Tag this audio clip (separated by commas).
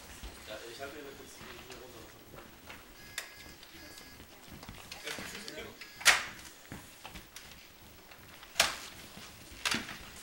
Speech